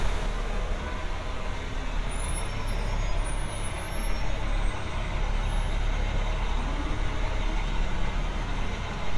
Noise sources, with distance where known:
medium-sounding engine, near

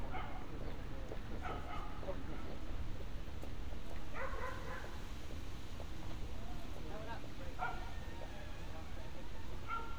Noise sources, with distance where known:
background noise

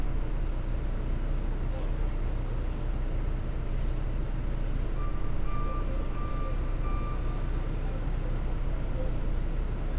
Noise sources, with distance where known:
reverse beeper

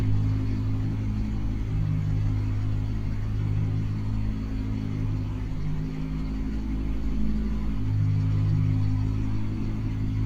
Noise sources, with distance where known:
large-sounding engine, near

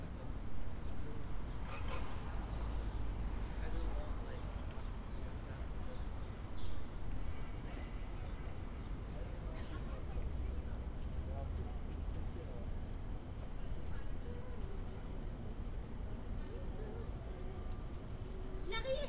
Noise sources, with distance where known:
person or small group talking

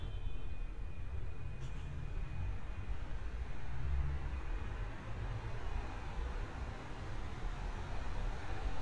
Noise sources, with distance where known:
medium-sounding engine, far

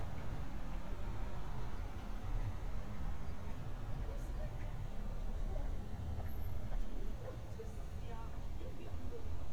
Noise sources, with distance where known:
person or small group talking, far

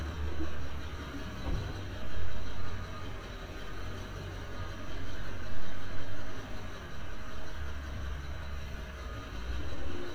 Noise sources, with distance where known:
large-sounding engine, far

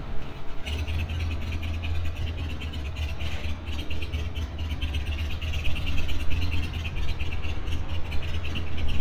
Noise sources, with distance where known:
medium-sounding engine, near

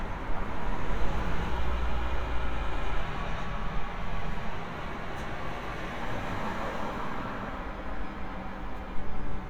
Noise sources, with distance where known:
medium-sounding engine, near

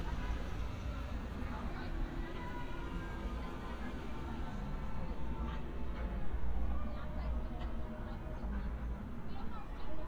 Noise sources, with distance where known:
car horn, far; person or small group talking

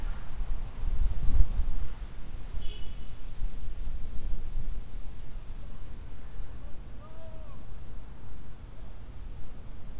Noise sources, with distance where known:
car horn, far; person or small group shouting, far

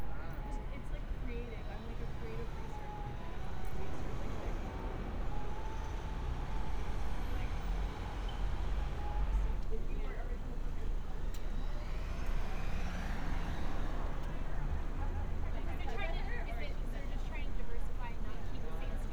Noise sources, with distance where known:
person or small group talking

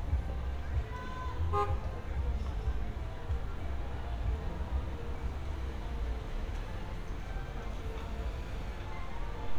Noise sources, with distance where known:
car horn, near; music from an unclear source; person or small group shouting, far

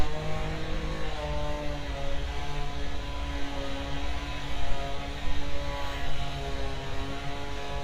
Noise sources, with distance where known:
unidentified powered saw, far

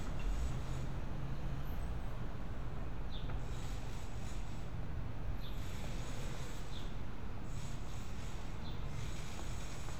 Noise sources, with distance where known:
background noise

